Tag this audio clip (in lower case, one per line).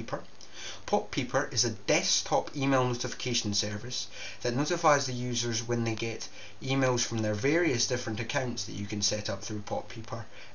speech